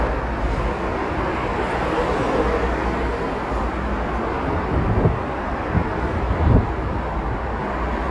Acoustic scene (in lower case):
street